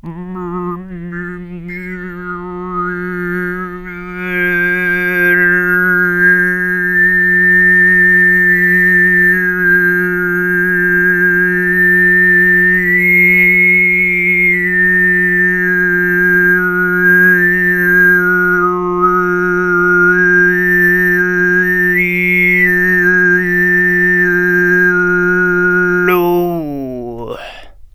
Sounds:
Human voice, Singing

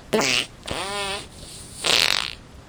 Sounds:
Fart

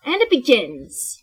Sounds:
woman speaking, Speech, Human voice

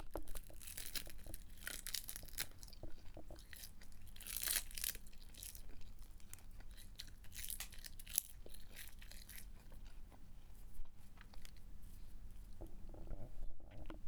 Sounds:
Chewing

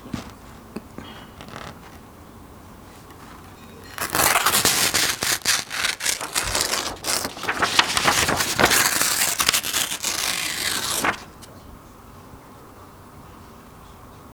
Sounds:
Tearing

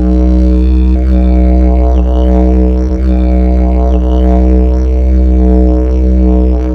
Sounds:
Music, Musical instrument

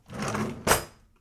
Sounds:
Domestic sounds, Drawer open or close, silverware

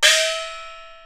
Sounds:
Music, Musical instrument, Gong, Percussion

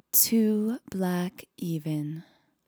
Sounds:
Human voice, Female speech, Speech

